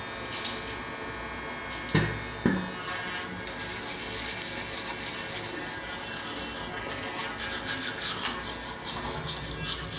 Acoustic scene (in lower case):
restroom